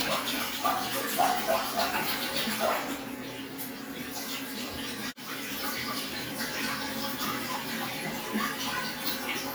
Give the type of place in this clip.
restroom